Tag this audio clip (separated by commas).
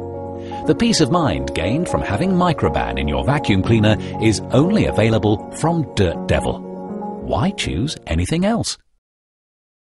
Music, Speech